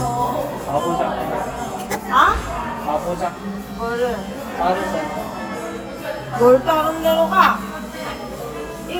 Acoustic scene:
cafe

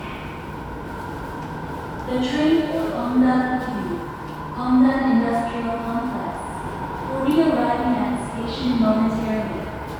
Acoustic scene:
subway station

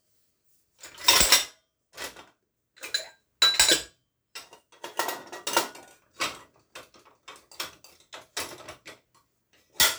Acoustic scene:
kitchen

